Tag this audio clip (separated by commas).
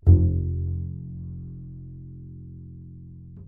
Bowed string instrument, Musical instrument, Music